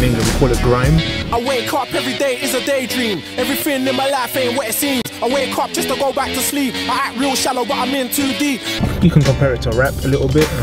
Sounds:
speech
pop music
music

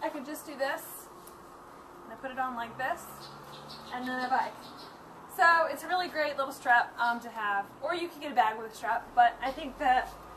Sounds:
speech

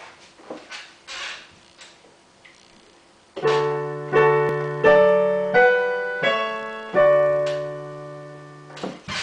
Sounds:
music

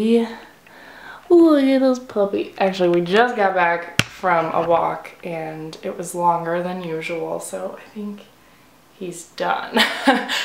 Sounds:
speech

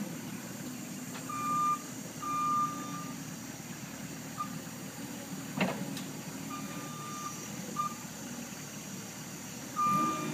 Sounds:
reversing beeps
vehicle

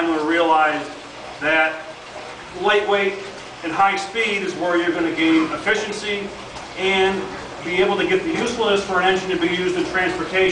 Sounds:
speech

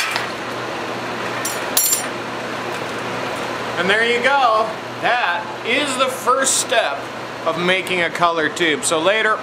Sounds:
speech

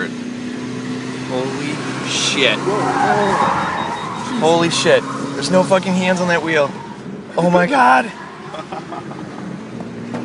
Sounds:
motor vehicle (road)
car
speech
vehicle

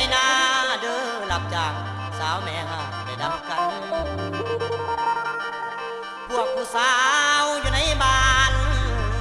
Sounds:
music

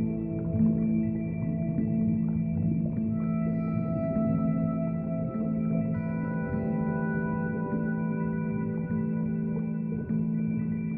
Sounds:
music

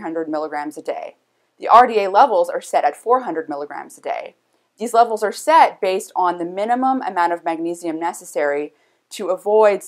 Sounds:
speech

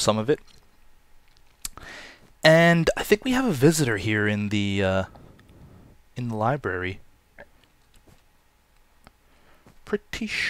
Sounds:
speech

